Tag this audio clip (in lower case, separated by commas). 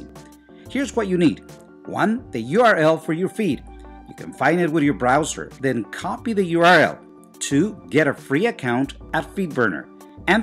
speech, music